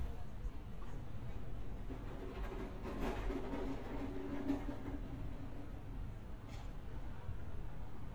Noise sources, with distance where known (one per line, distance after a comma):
non-machinery impact, near